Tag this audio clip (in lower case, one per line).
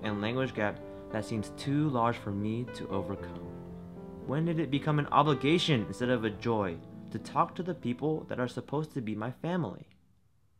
speech
music